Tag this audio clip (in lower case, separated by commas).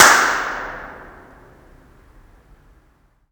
clapping, hands